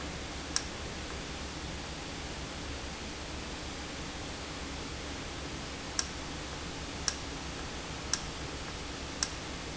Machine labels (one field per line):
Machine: valve